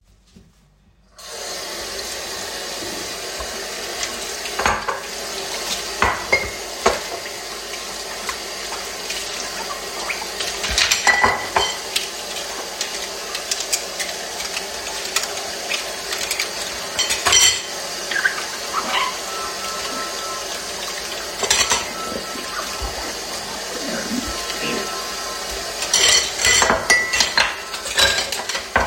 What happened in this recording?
I opened the tap, letting water out. I then started to wash the dishes I had piled up. In near vicinity of me a phone rang. I let it go through until the end of the recording.